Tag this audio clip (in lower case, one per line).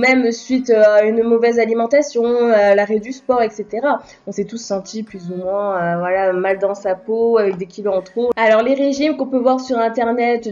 speech